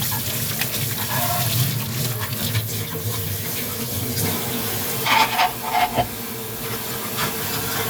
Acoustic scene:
kitchen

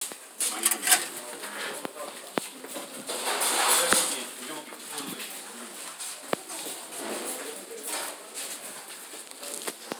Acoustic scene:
kitchen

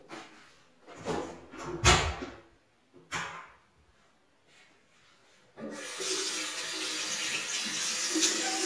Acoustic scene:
restroom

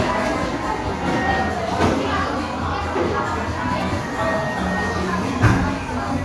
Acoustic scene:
crowded indoor space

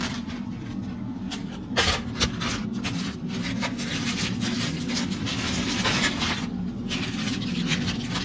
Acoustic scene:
kitchen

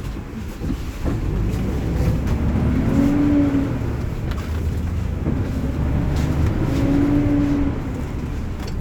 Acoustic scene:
bus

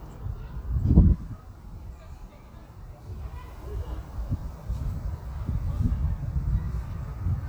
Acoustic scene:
residential area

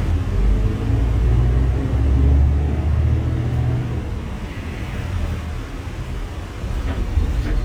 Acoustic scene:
bus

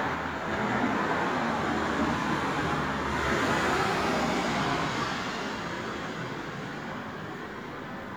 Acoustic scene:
street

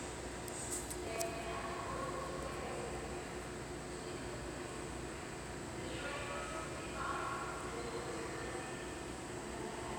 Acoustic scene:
subway station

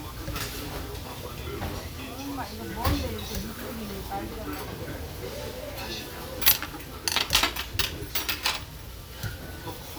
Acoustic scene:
restaurant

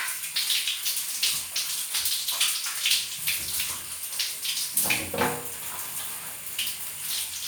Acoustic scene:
restroom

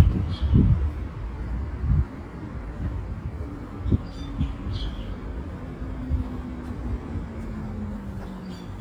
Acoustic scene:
residential area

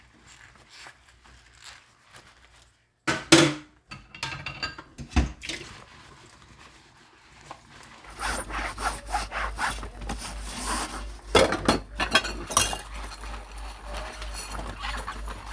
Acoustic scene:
kitchen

